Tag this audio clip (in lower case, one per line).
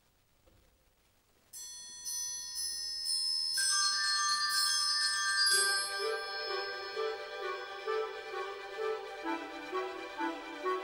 orchestra
music